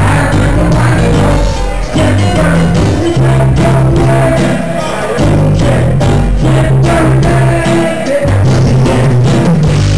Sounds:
music

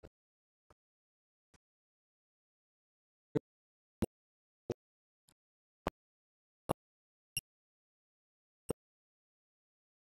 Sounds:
speech
inside a small room

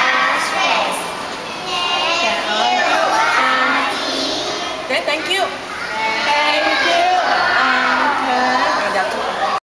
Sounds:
child singing
speech

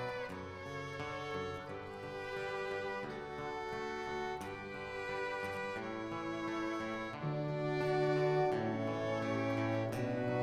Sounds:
music

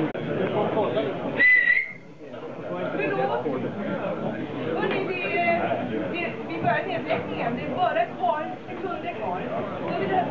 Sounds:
speech

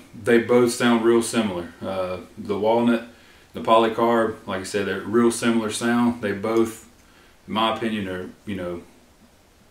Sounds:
speech

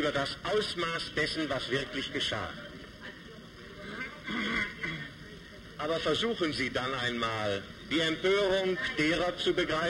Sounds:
speech

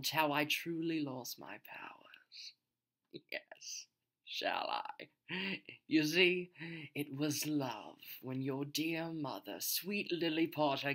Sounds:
monologue
speech

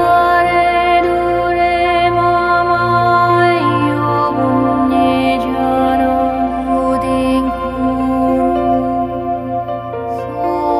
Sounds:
music
new-age music
mantra

